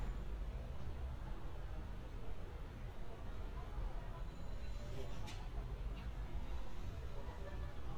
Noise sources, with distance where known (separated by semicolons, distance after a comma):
unidentified human voice, far